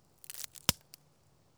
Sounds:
crack

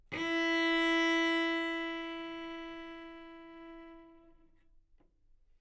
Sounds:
music, musical instrument, bowed string instrument

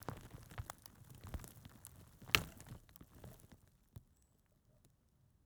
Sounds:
crack

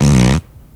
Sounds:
fart

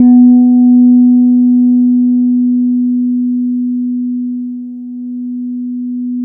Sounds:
guitar, music, bass guitar, musical instrument, plucked string instrument

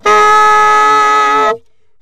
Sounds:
music, musical instrument, wind instrument

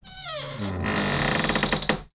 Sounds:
home sounds, cupboard open or close, door

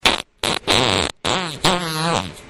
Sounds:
fart

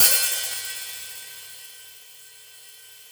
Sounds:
hi-hat, musical instrument, cymbal, percussion, music

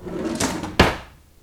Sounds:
home sounds, drawer open or close

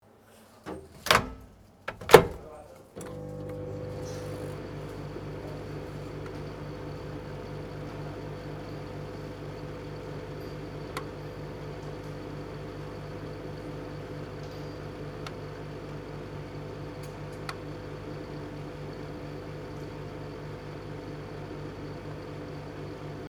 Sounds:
microwave oven, domestic sounds

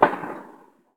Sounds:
fireworks, explosion

